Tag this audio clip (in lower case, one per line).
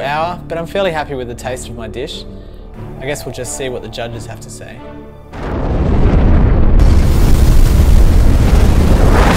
music
speech
eruption